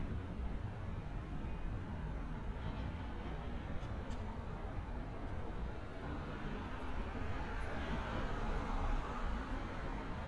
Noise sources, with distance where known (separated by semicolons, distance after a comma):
medium-sounding engine, near